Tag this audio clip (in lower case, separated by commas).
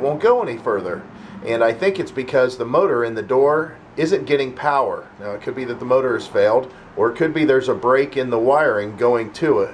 speech